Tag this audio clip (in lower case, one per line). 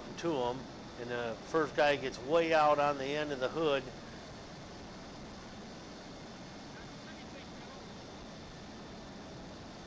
speech